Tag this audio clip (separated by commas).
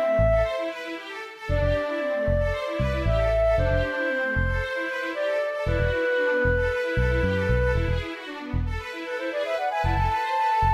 Music